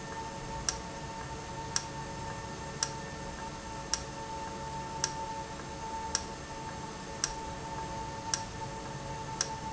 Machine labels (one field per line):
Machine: valve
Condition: normal